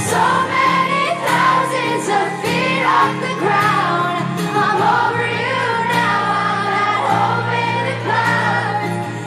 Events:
[0.00, 0.26] human voice
[0.00, 4.20] female singing
[0.00, 9.25] music
[1.21, 1.87] human voice
[2.81, 3.12] shout
[3.22, 4.01] human voice
[4.47, 8.94] female singing
[8.99, 9.25] breathing

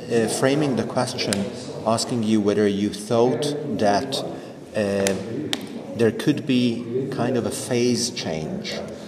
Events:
[0.00, 1.23] male speech
[0.00, 9.05] background noise
[0.13, 0.82] human voice
[1.10, 1.79] human voice
[1.24, 1.32] generic impact sounds
[1.81, 3.45] male speech
[3.14, 4.10] human voice
[3.70, 4.19] male speech
[4.69, 5.09] male speech
[4.98, 5.05] generic impact sounds
[5.15, 5.79] human voice
[5.47, 5.54] generic impact sounds
[5.90, 6.64] male speech
[6.67, 7.52] human voice
[7.02, 8.76] male speech
[8.34, 9.05] human voice
[8.90, 9.05] scrape

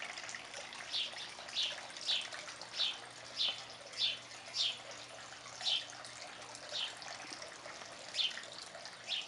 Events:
[0.00, 9.25] dribble
[0.00, 9.25] wind
[0.89, 1.03] bird call
[1.14, 1.24] bird call
[1.56, 1.72] bird call
[2.04, 2.25] bird call
[2.75, 2.93] bird call
[3.35, 3.51] bird call
[3.96, 4.13] bird call
[4.49, 4.73] bird call
[5.60, 5.80] bird call
[6.72, 6.83] bird call
[8.15, 8.31] bird call
[9.06, 9.22] bird call

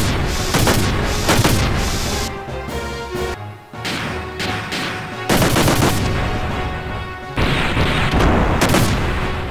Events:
[0.00, 9.50] music
[0.00, 9.50] video game sound
[0.48, 0.76] gunfire
[1.23, 1.48] gunfire
[3.85, 4.14] gunfire
[4.38, 4.55] gunfire
[4.69, 4.91] gunfire
[5.25, 6.05] gunfire
[7.33, 8.24] gunfire
[8.59, 8.93] gunfire

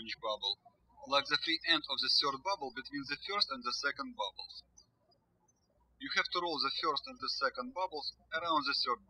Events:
[0.00, 0.54] man speaking
[0.01, 9.05] background noise
[0.98, 4.82] man speaking
[5.91, 9.05] man speaking

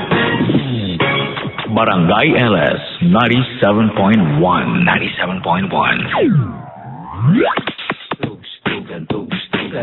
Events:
[0.00, 2.79] music
[1.32, 1.46] sound effect
[1.52, 1.68] sound effect
[1.64, 2.92] man speaking
[2.98, 6.02] man speaking
[6.06, 7.54] sound effect
[7.52, 9.82] music
[8.16, 9.82] man speaking

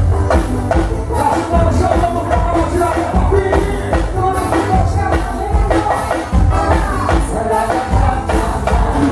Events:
[0.00, 9.11] music
[1.08, 3.99] male speech
[4.09, 6.36] male speech
[6.48, 7.21] male speech
[7.39, 9.11] choir

